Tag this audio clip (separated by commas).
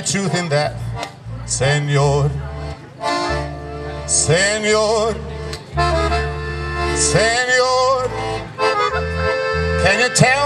Music, Speech